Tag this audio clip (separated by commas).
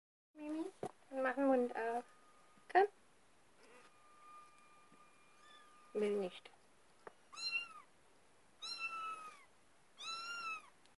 Cat, pets, Meow, Animal